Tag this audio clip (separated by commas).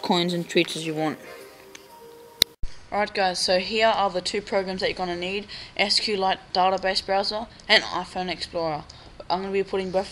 Music, Speech